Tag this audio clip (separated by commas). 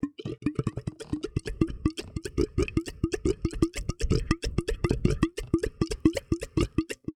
Water, Gurgling